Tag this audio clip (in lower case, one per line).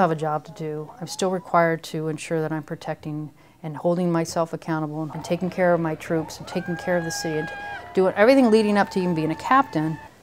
speech